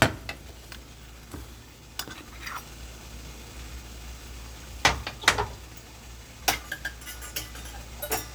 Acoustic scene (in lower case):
kitchen